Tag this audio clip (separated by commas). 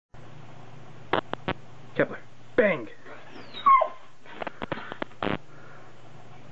Speech